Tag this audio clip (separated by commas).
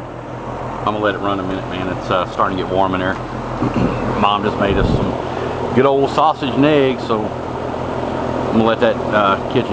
Mechanical fan